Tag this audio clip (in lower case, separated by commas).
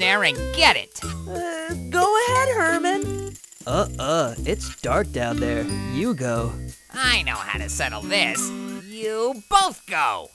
speech, music